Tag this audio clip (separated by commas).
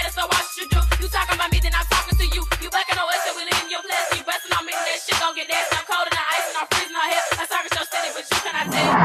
Music, Hip hop music